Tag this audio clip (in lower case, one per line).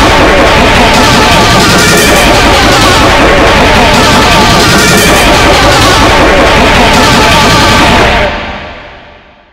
music